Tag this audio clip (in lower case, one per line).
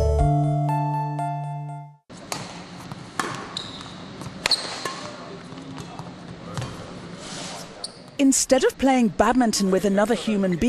playing badminton